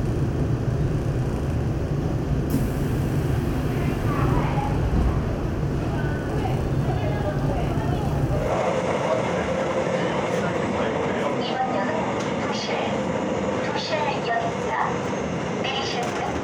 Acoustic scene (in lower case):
subway train